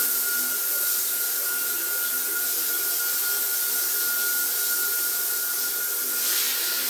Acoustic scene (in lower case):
restroom